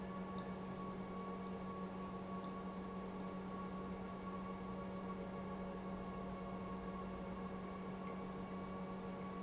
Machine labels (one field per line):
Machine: pump